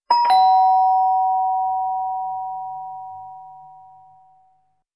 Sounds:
doorbell, home sounds, alarm, door

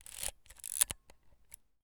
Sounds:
camera, mechanisms

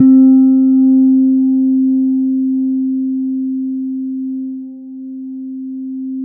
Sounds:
plucked string instrument, music, bass guitar, musical instrument, guitar

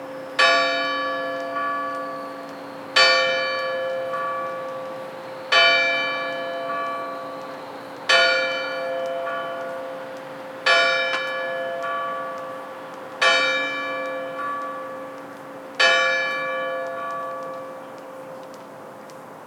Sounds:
church bell, bell

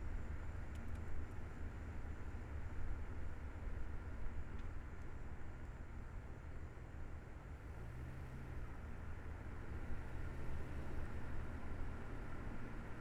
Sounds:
vehicle, motor vehicle (road)

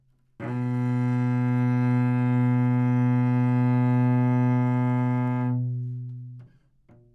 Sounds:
music, musical instrument, bowed string instrument

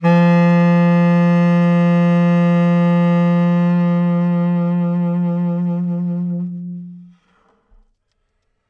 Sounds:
musical instrument, woodwind instrument, music

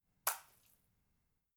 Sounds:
water, liquid, splatter

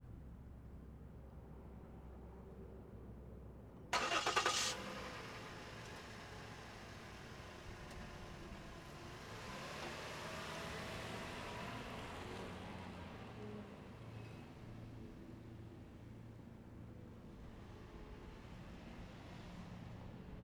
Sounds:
engine, engine starting

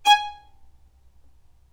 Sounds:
musical instrument, bowed string instrument, music

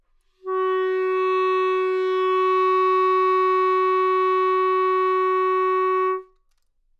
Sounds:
music, wind instrument, musical instrument

